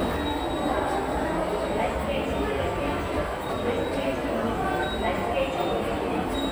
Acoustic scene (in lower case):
subway station